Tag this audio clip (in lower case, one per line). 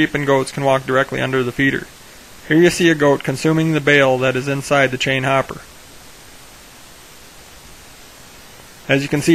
speech